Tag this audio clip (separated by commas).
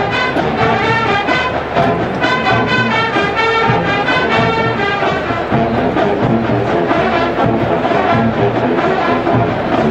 people marching